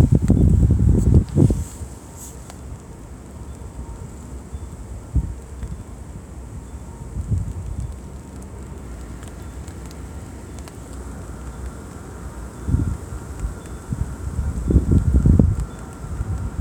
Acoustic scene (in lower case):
residential area